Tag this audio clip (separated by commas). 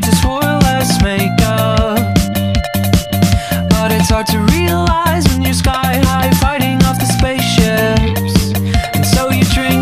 Music